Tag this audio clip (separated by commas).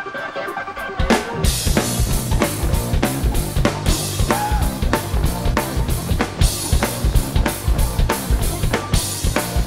Musical instrument, Drum, Exciting music, Music, Bass drum, Drum kit